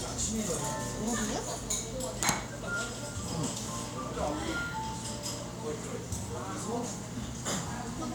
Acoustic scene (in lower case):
cafe